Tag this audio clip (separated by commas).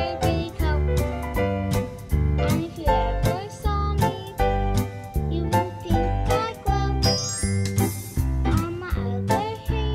Music